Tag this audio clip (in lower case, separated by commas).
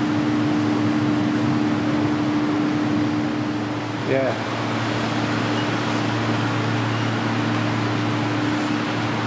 speech